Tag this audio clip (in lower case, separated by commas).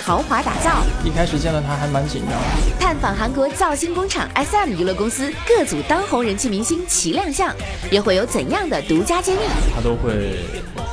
speech, music